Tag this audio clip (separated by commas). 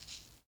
Musical instrument, Rattle (instrument), Percussion, Music